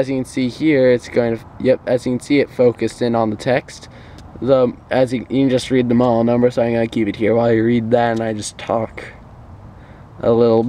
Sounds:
speech

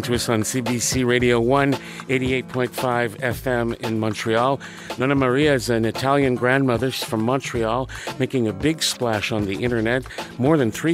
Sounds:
music
speech

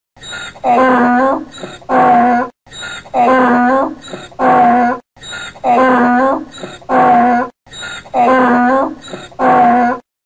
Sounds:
ass braying

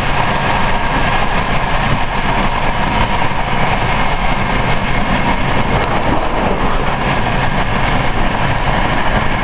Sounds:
train wagon
rail transport
vehicle
train

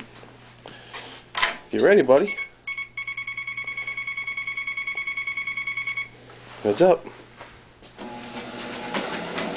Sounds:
buzzer
speech

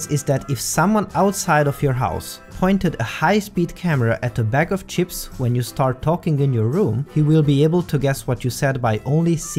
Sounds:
speech
music

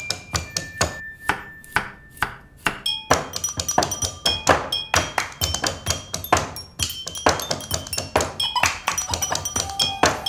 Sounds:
music

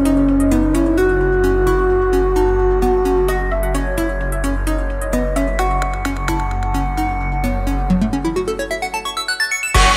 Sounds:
music
electronic music

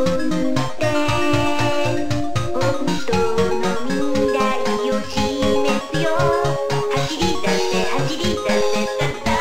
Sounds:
video game music
funny music
music

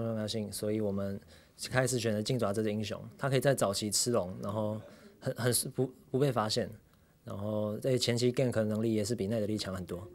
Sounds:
speech

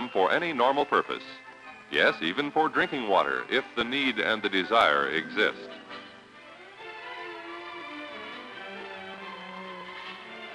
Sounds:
speech
music

